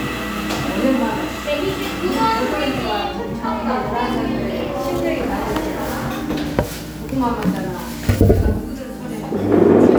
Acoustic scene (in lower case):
cafe